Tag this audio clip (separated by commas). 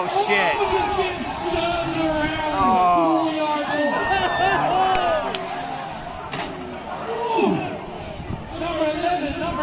Vehicle, Speech, Car, outside, rural or natural